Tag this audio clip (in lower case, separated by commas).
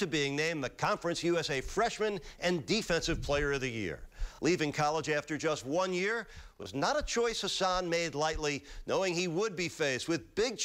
speech